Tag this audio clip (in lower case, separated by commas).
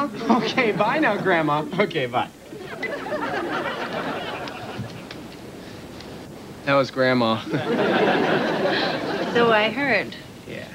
speech